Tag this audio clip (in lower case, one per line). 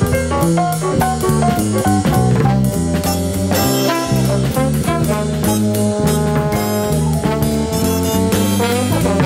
music